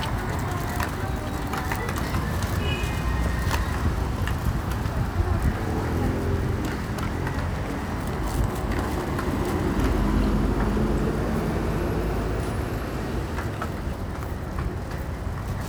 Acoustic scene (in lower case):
street